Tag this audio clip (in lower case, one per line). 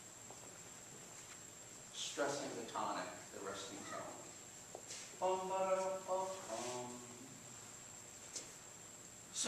speech